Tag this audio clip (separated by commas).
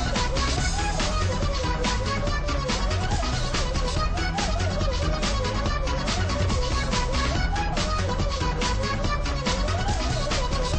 Music